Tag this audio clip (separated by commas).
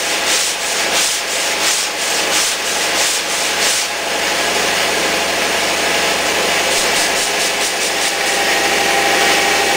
Sanding, Rub